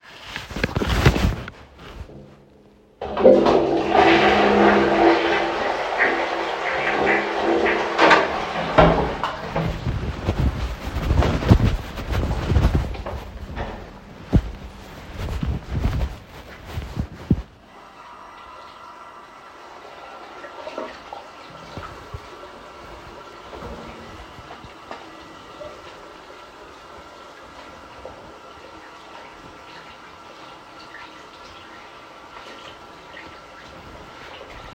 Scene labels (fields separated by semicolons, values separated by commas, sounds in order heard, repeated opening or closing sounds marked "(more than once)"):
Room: bathroom; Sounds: toilet flushing, door (more than once), light switch, running water